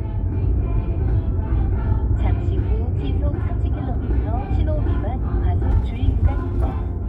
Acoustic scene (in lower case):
car